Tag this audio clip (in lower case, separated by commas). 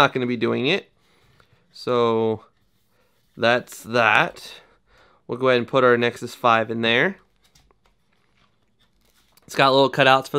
speech